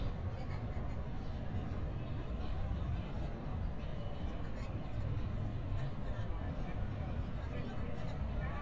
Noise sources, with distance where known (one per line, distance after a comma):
person or small group talking